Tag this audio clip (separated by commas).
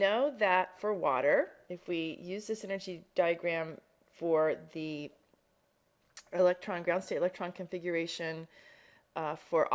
Speech